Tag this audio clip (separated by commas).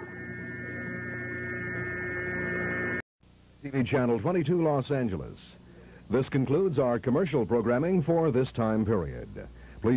Mains hum, Hum